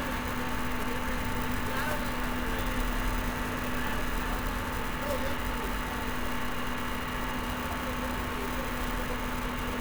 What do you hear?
person or small group talking